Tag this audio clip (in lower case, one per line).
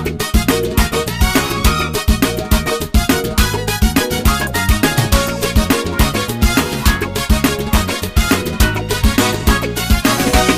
afrobeat
music
music of africa